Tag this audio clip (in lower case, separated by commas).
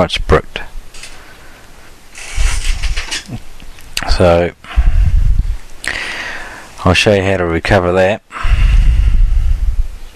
speech, inside a small room